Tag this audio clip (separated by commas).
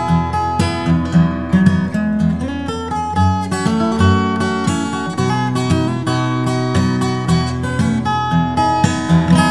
Musical instrument, Guitar, Strum, Plucked string instrument, Music